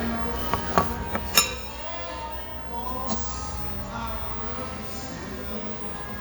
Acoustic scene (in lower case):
restaurant